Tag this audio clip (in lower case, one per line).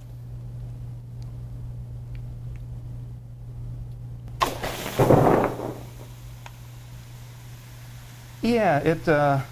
liquid
speech